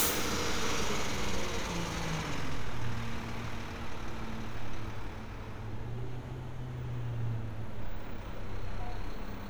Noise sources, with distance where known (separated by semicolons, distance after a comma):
large-sounding engine, near